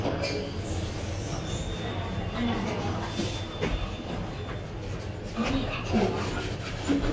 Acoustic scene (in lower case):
elevator